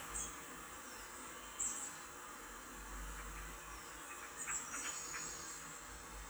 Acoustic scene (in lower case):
park